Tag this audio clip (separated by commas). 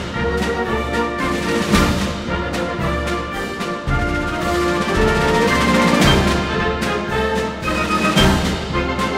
playing bugle